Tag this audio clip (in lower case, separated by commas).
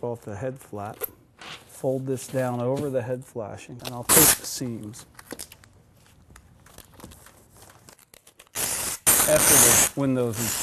speech, inside a large room or hall